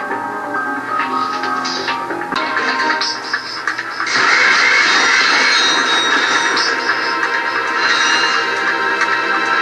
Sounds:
music

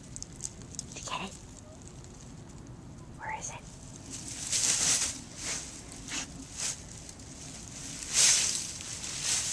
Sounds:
speech

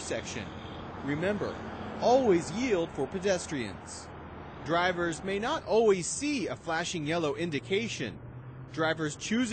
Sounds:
speech

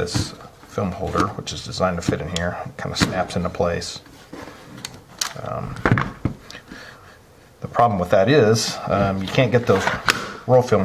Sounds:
speech

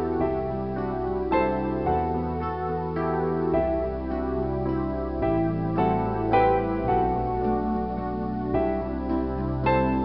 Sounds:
sampler, music

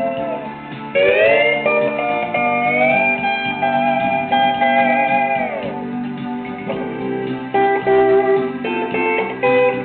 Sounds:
music, plucked string instrument, steel guitar, guitar, musical instrument

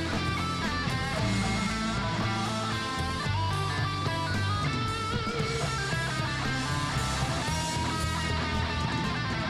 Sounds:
plucked string instrument, music, strum, acoustic guitar, guitar, musical instrument

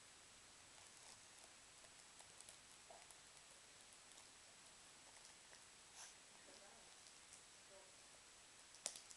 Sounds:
inside a small room, silence

